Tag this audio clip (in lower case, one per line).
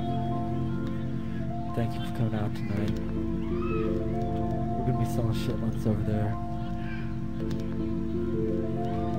music
speech